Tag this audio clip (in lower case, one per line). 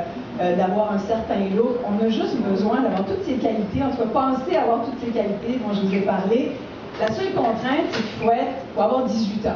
speech